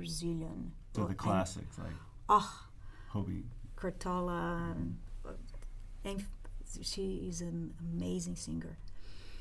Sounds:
speech

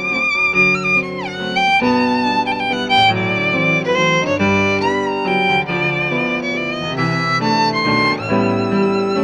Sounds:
musical instrument, music, fiddle

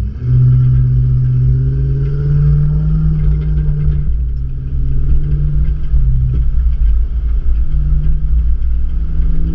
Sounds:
clatter

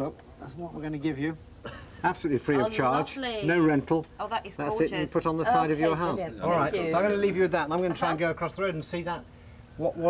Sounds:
speech, outside, urban or man-made

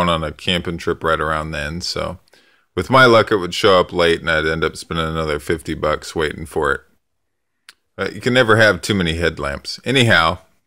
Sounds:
mosquito buzzing

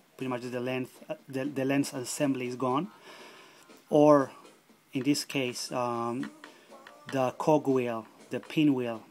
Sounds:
music, speech

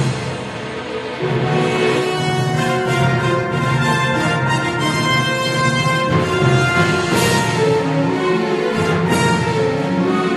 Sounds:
theme music, music

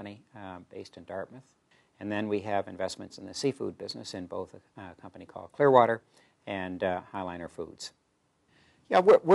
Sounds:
speech

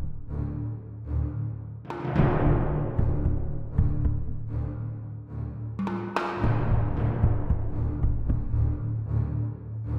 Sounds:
music

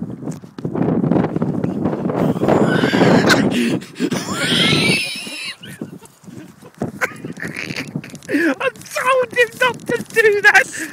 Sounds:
outside, rural or natural, speech

